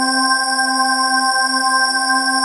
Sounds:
Musical instrument, Organ, Keyboard (musical), Music

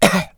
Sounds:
Cough, Respiratory sounds

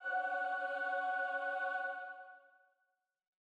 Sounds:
Musical instrument, Singing, Human voice, Music

